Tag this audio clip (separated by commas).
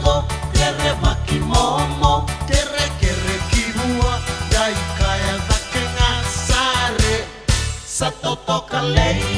Music